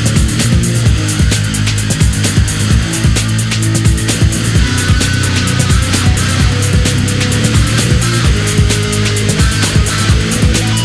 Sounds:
music

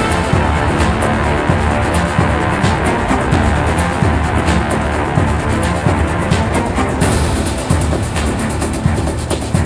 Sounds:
music

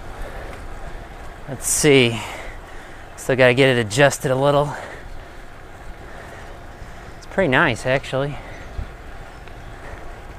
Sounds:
speech, vehicle

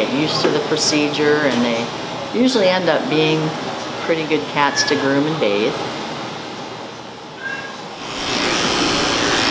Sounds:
animal, inside a large room or hall, cat, speech, domestic animals

